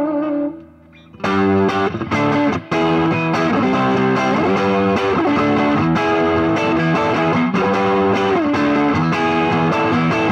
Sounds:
bass guitar
guitar
electric guitar
musical instrument
music
plucked string instrument

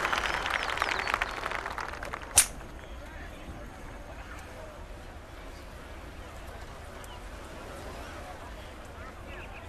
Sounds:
speech

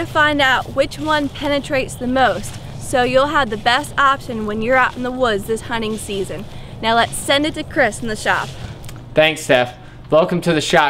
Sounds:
speech

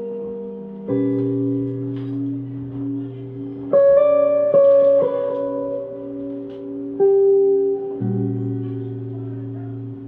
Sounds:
music

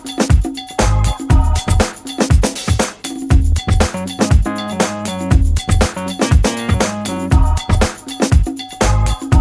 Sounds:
music

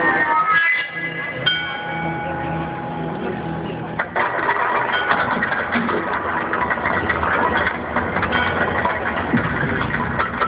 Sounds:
speech

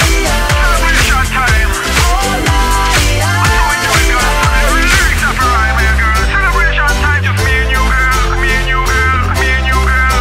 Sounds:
hip hop music
music

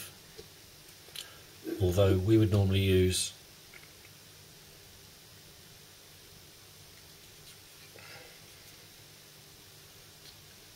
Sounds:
speech

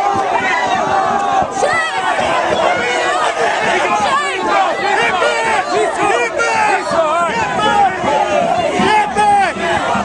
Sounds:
speech

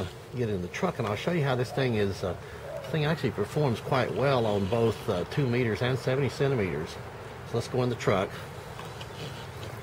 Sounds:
speech

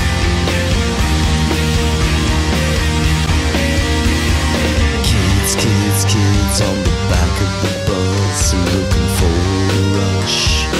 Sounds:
music
blues

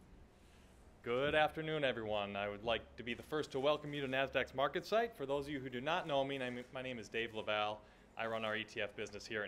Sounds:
speech

